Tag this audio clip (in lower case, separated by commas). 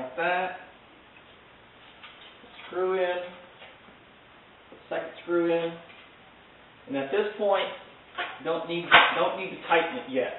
speech